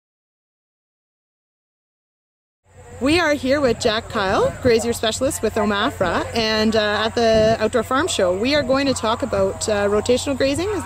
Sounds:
Speech

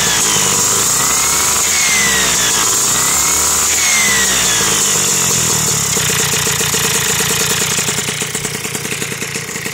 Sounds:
Vehicle, Motorcycle

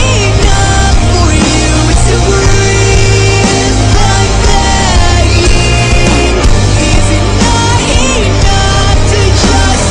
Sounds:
Music

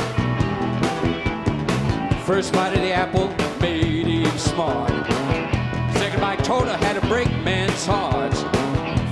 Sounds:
Rock and roll, Singing

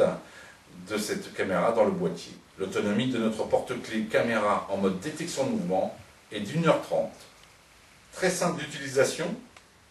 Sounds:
Speech

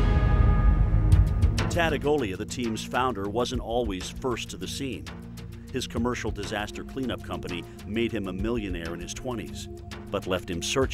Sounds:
Music, Speech

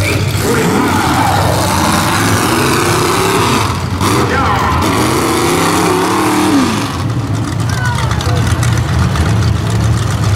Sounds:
Vehicle, Truck

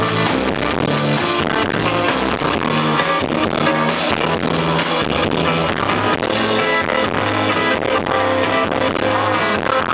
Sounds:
Music

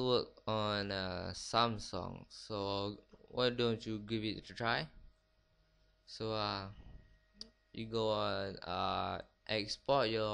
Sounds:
Speech

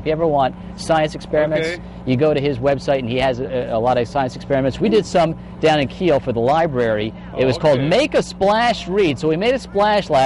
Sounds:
Speech

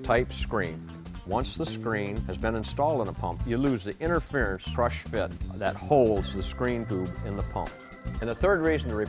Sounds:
Music, Speech

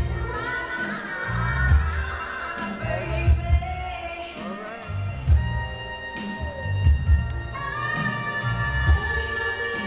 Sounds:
Speech, Music

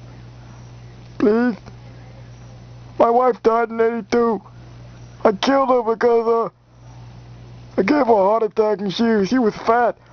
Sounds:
Speech

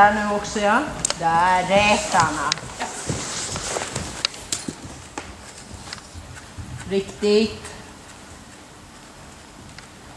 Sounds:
Horse, Speech, livestock, Animal

